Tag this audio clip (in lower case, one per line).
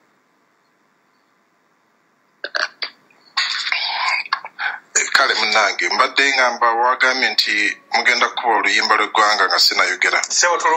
speech